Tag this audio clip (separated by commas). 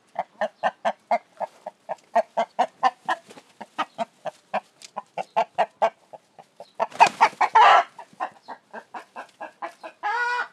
livestock, Animal, Fowl, rooster